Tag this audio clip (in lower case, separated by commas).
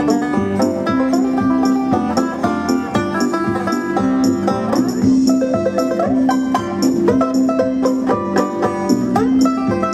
music, banjo, guitar